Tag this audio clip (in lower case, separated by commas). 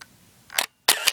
mechanisms, camera